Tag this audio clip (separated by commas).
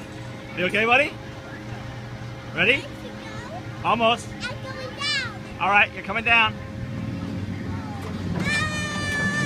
Speech